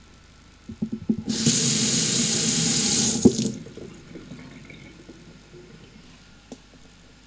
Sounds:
dishes, pots and pans
home sounds

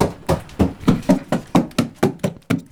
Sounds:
run

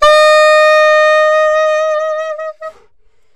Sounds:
musical instrument
woodwind instrument
music

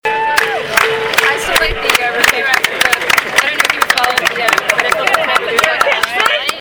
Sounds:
hands
clapping

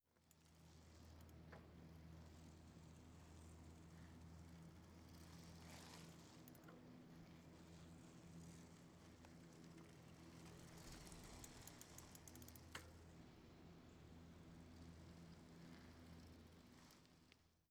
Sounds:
vehicle
bicycle

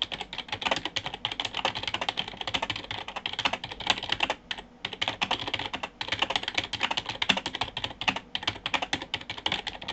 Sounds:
home sounds
typing

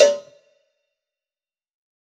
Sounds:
bell
cowbell

